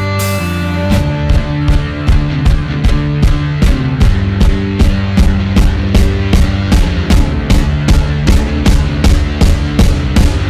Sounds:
drum
rimshot
snare drum
bass drum
percussion
drum kit

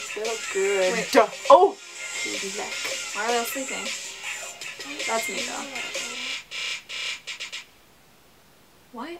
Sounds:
music
speech
inside a small room

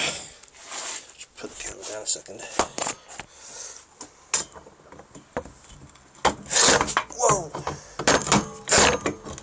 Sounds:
speech

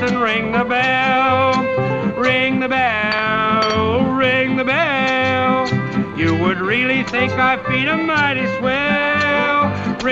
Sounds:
music

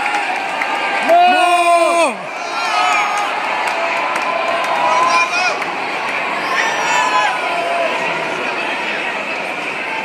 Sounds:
speech
cheering
crowd

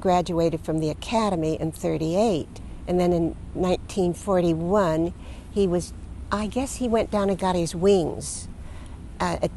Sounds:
speech

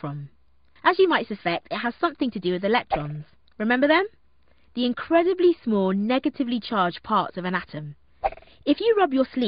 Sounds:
speech

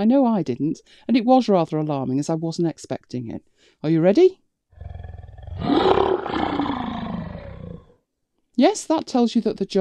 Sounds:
speech
growling
inside a small room

